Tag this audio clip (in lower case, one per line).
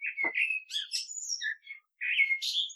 animal
wild animals
bird